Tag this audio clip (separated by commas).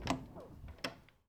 Door, home sounds